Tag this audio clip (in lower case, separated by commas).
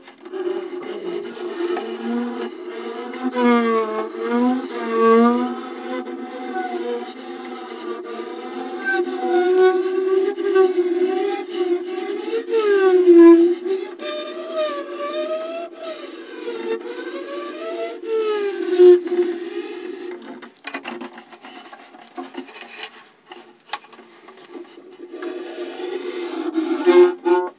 music, bowed string instrument, musical instrument